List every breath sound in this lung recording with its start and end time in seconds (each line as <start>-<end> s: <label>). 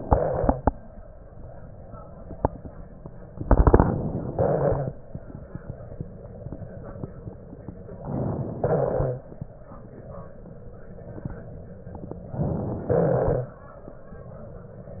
0.00-0.70 s: crackles
0.00-0.73 s: exhalation
3.35-4.27 s: crackles
3.38-4.30 s: inhalation
4.30-5.05 s: exhalation
4.30-5.05 s: crackles
7.96-8.59 s: inhalation
7.96-8.59 s: crackles
8.61-9.24 s: exhalation
8.61-9.24 s: crackles
12.25-12.88 s: inhalation
12.25-12.88 s: crackles
12.89-13.52 s: exhalation
12.89-13.52 s: crackles